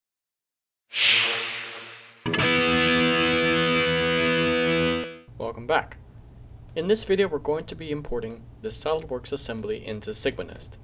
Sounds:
music
speech

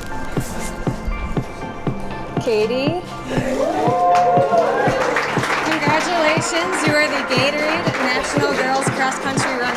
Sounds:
inside a large room or hall
speech
music

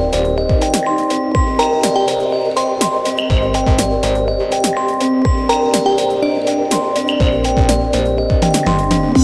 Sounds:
music

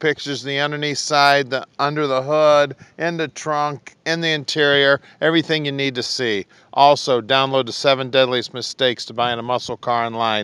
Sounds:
speech

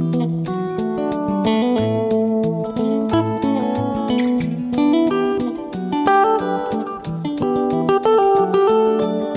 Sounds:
plucked string instrument
bass guitar
music
musical instrument
strum
guitar

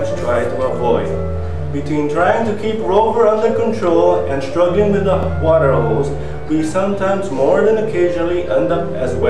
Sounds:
speech
music

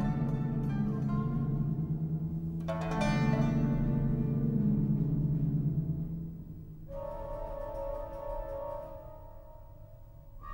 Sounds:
classical music
organ
harpsichord
keyboard (musical)
music
musical instrument

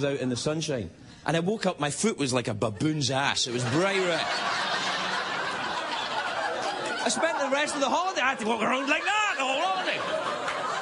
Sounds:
speech
narration

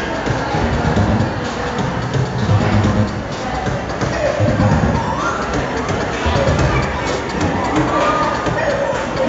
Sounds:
music
speech
pop music

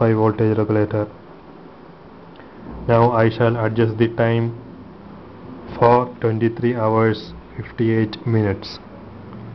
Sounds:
speech

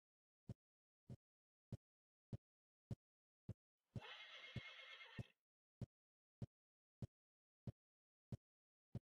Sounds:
neigh

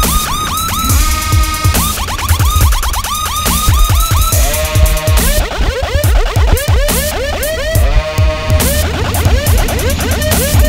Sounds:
vehicle
motorboat
boat
music

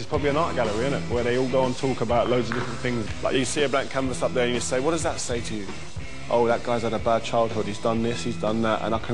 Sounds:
speech
music

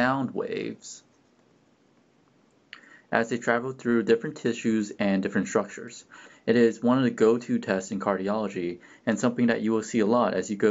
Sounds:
speech

